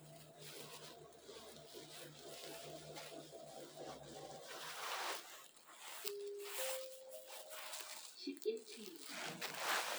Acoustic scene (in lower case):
elevator